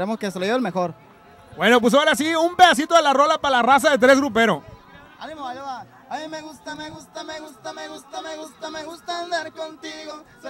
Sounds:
speech

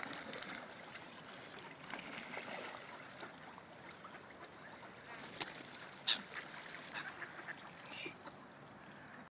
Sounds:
speech

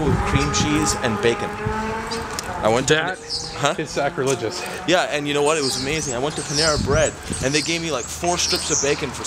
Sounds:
speech

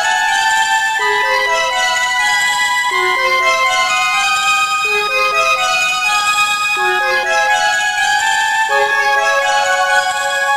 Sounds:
music

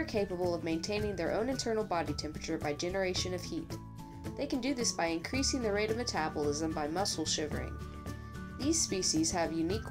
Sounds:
music
speech

